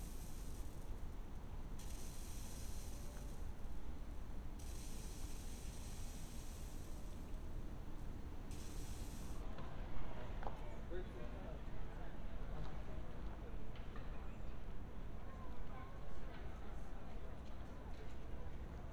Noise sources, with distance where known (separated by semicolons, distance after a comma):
background noise